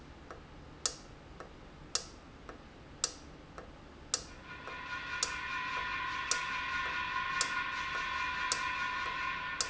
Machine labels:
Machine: valve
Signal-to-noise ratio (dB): -6 dB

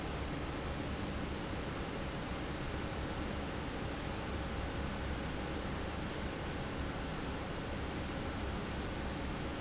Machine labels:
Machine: fan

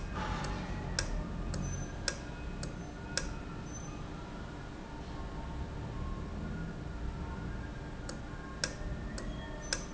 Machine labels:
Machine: valve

